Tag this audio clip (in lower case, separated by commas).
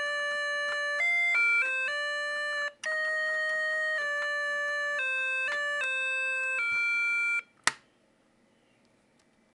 piano, keyboard (musical)